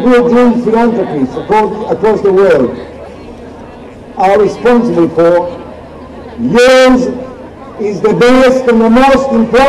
Over a crowd of people, a male speaks through a loudspeaker